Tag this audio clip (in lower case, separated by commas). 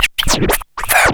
musical instrument, scratching (performance technique), music